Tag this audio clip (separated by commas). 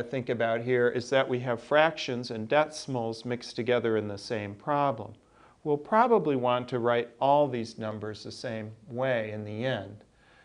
Speech